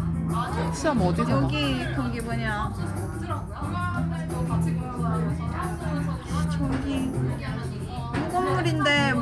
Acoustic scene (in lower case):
crowded indoor space